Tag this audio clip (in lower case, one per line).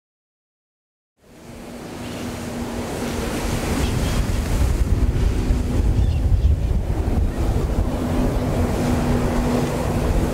outside, rural or natural